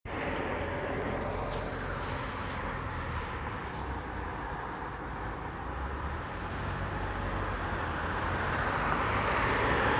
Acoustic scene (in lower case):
street